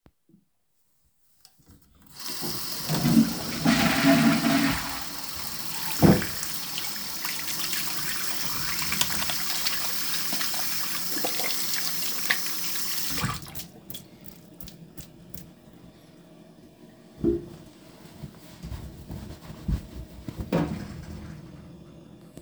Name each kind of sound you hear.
running water